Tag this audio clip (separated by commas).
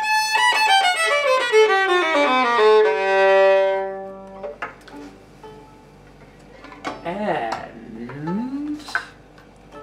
fiddle, Music, Musical instrument